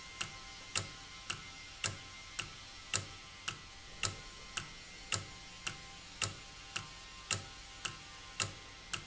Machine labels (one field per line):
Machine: valve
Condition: normal